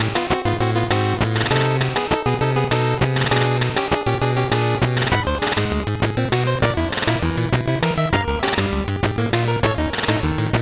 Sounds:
music

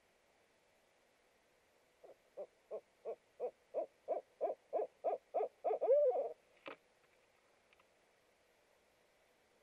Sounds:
owl hooting

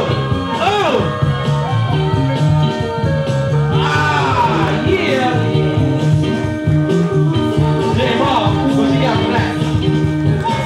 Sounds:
speech, music

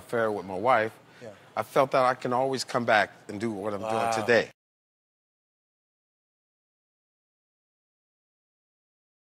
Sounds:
speech

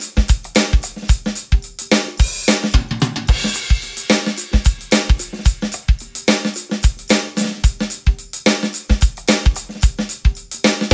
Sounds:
music, drum kit, musical instrument, drum

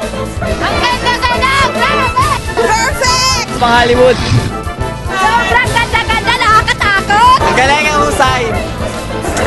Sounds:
speech, music

